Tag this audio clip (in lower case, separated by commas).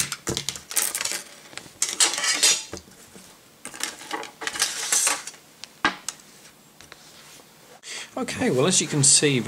speech, inside a small room